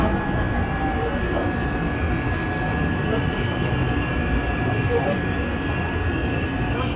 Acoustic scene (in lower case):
subway train